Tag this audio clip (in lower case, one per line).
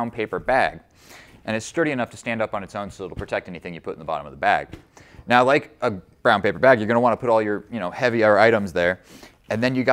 speech